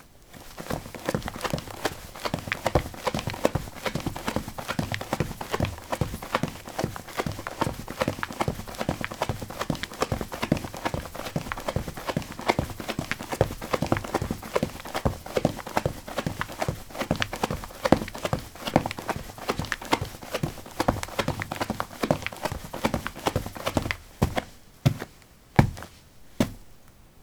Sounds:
run

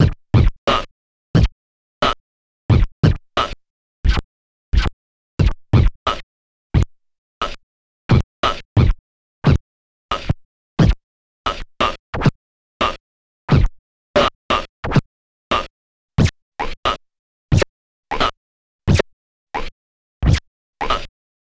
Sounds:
scratching (performance technique), music, musical instrument

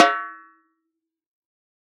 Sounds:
musical instrument, music, snare drum, percussion, drum

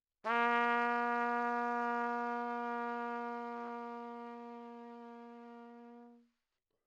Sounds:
musical instrument, brass instrument, music, trumpet

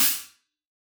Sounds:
percussion, hi-hat, musical instrument, music, cymbal

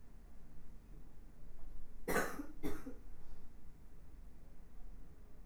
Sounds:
respiratory sounds, cough

